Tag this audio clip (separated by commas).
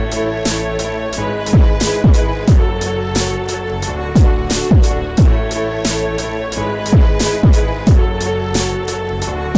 Music